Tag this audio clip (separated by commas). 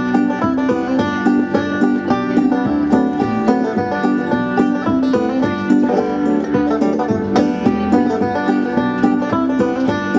Music